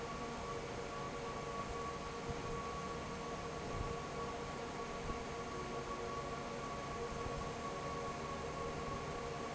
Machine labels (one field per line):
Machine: fan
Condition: normal